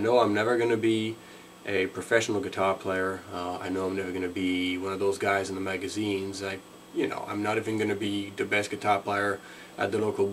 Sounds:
Speech

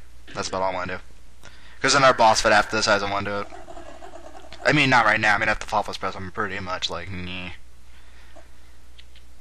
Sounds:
Speech

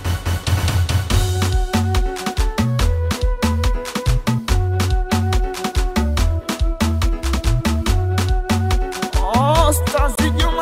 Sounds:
Music of Africa, Afrobeat, Music

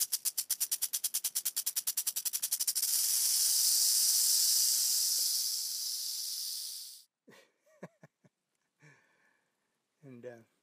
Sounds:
snake rattling

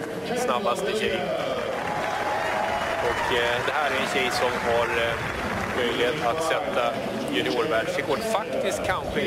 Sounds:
outside, urban or man-made, Speech

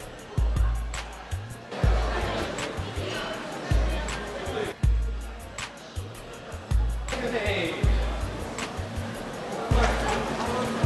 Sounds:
Speech, Music

